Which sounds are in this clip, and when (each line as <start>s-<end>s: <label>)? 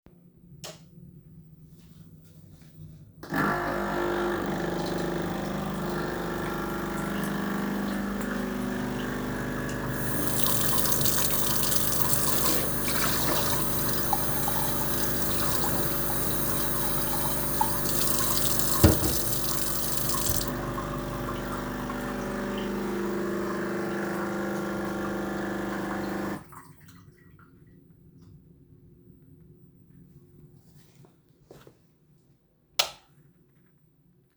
0.4s-1.0s: light switch
3.1s-26.8s: coffee machine
9.9s-20.6s: running water
29.9s-32.6s: footsteps
32.6s-33.0s: light switch